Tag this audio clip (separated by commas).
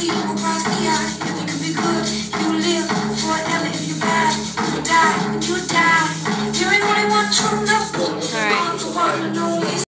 Speech, Music